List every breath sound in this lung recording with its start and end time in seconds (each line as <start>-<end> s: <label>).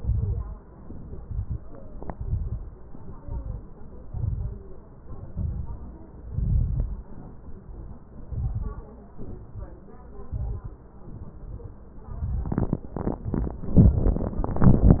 0.00-0.60 s: exhalation
0.00-0.60 s: crackles
0.76-1.61 s: inhalation
0.76-1.61 s: crackles
2.09-2.77 s: exhalation
2.09-2.77 s: crackles
2.96-3.65 s: inhalation
2.96-3.65 s: crackles
4.03-4.71 s: exhalation
4.03-4.71 s: crackles
5.00-5.91 s: inhalation
5.00-5.91 s: crackles
6.31-7.10 s: exhalation
6.31-7.10 s: crackles
8.25-8.89 s: inhalation
8.25-8.89 s: crackles
9.20-9.84 s: exhalation
10.24-10.89 s: inhalation
10.24-10.89 s: crackles
11.08-11.91 s: exhalation
12.07-12.82 s: inhalation
12.07-12.82 s: crackles